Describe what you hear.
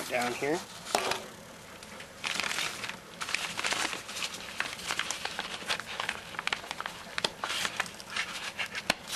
An adult male speaks and paper is crumpled